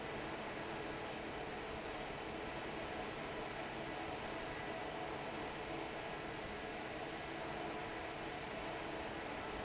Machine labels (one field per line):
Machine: fan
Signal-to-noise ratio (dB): 6 dB